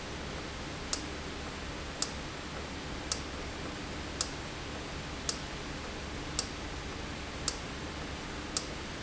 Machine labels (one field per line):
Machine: valve